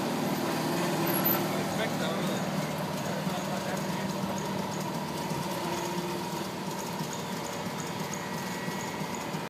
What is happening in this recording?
A vehicle is idling